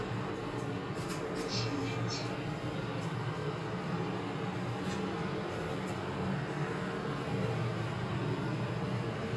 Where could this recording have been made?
in an elevator